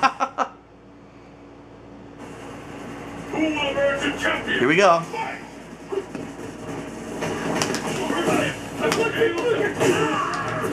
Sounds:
Speech

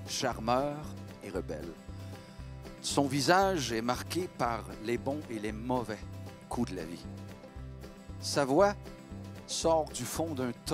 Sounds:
Speech, Music, Country

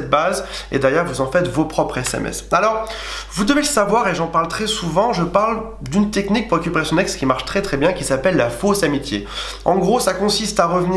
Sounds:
Speech

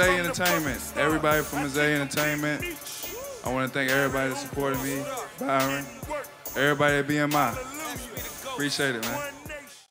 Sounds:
Speech, Music

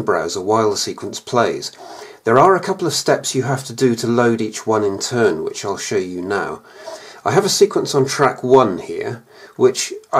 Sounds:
Speech

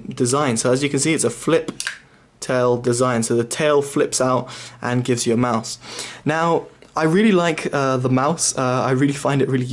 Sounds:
Speech

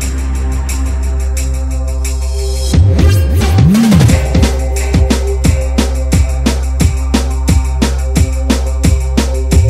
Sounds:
Music, Synthesizer

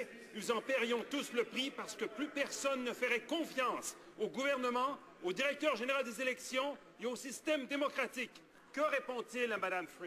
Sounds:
Speech

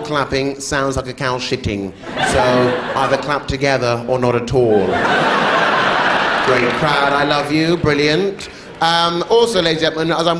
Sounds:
Speech

